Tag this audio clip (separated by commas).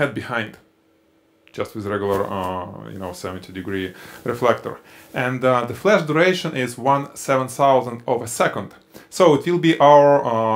Speech